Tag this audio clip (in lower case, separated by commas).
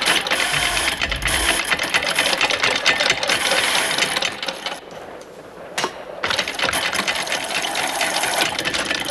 inside a large room or hall